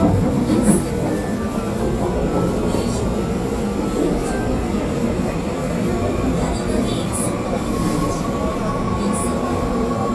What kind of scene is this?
subway train